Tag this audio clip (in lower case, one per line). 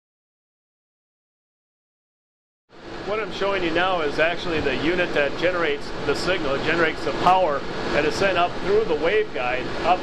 speech